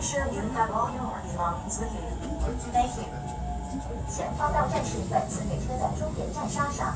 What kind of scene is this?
subway train